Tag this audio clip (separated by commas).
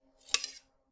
Domestic sounds, Cutlery